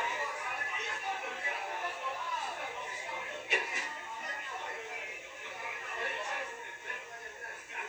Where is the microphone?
in a restaurant